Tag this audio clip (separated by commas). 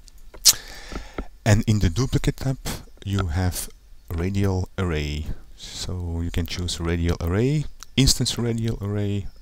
Speech